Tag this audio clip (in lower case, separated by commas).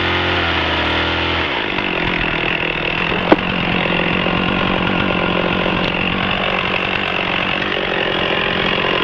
chainsaw